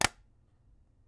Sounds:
Tap

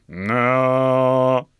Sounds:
Human voice, Singing, Male singing

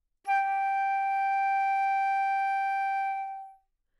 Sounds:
Music, Wind instrument, Musical instrument

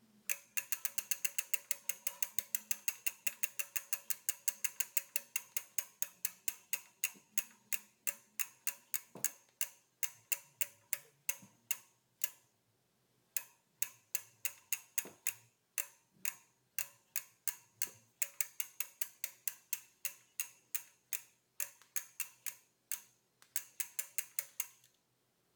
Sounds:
Mechanisms, Vehicle, Bicycle

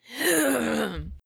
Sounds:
Cough, Respiratory sounds, Human voice

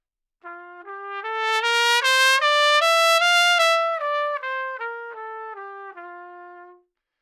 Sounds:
Brass instrument, Musical instrument, Trumpet, Music

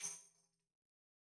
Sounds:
Music, Tambourine, Percussion, Musical instrument

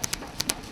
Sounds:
Tools

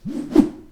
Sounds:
Whoosh

